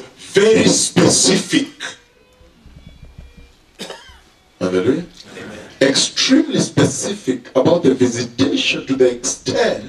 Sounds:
Speech

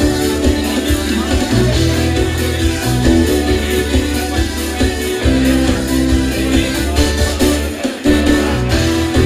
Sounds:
Music, Exciting music, Pop music

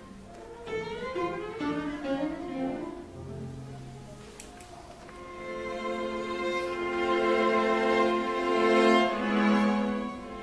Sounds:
Cello, Violin, Music, Bowed string instrument, Musical instrument, String section, Classical music

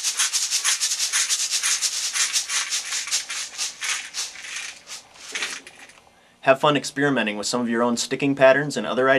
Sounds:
playing guiro

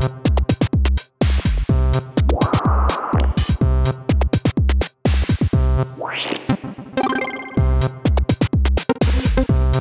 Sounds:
Music, Drum machine

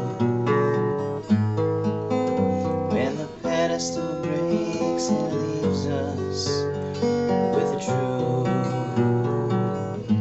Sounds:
Acoustic guitar, Guitar, Plucked string instrument, Music, Musical instrument

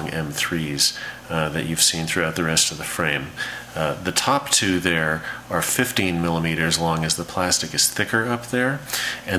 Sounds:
Speech

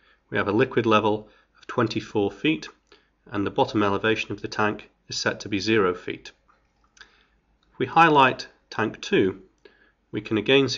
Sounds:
Speech

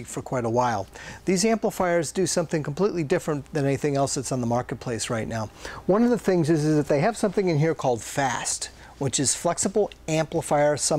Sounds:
Speech

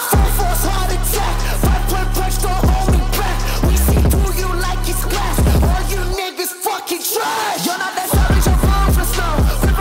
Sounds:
rapping

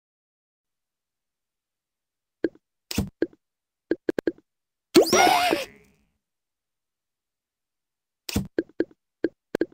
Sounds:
Silence

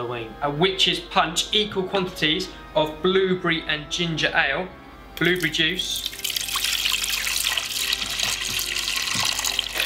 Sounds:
Water

